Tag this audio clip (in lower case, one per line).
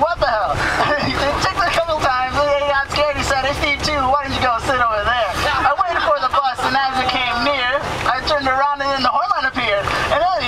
crowd